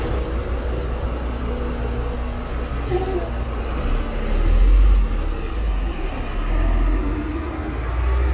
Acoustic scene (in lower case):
street